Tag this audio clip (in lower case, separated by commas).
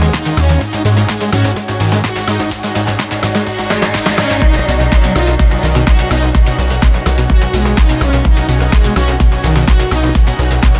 electronic music, trance music, music